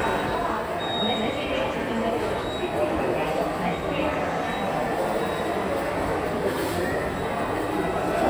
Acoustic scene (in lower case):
subway station